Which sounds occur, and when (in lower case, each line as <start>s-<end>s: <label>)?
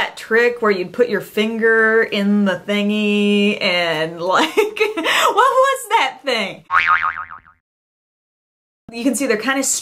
0.0s-0.2s: generic impact sounds
0.0s-6.7s: woman speaking
0.0s-6.7s: mechanisms
4.2s-5.0s: laughter
5.0s-5.3s: breathing
6.7s-7.6s: boing
8.8s-9.8s: woman speaking
8.9s-9.8s: mechanisms